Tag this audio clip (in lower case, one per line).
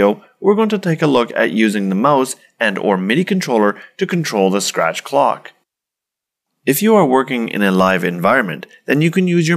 speech